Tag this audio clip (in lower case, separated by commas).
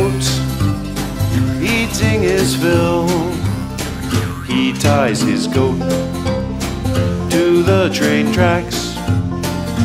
music